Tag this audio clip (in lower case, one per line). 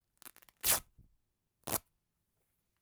tearing